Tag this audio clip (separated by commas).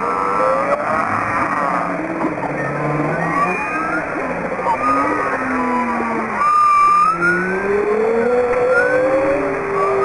whale calling